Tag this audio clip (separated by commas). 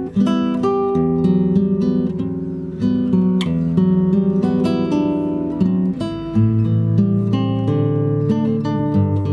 Plucked string instrument, Music, Acoustic guitar, Musical instrument, Guitar